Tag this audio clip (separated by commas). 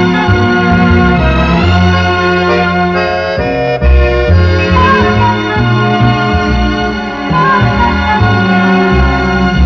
Music